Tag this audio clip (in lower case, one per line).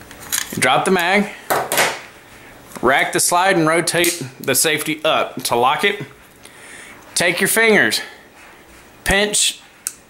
speech
inside a small room
wood